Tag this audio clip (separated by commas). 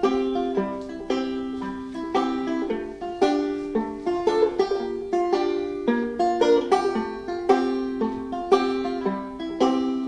Plucked string instrument, Banjo, Musical instrument, Music